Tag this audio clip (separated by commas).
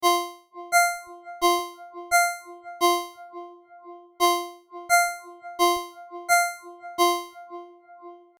Telephone, Ringtone, Alarm